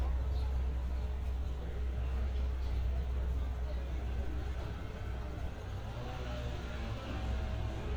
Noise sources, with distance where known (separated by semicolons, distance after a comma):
chainsaw, far